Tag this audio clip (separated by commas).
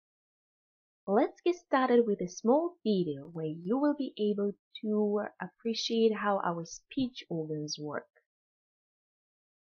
Narration, Female speech, Speech